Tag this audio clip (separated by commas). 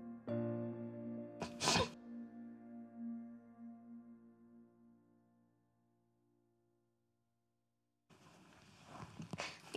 Speech, Music